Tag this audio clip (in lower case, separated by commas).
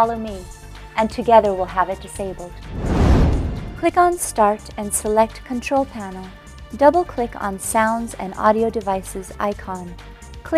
music, speech